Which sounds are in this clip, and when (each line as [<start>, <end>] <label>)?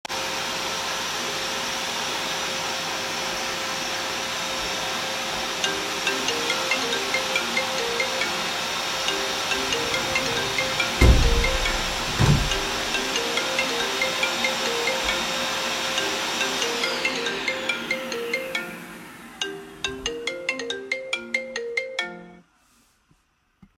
[0.00, 21.83] vacuum cleaner
[5.63, 22.45] phone ringing
[10.99, 12.62] window